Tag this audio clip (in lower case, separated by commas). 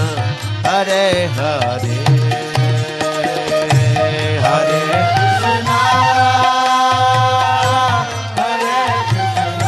mantra, music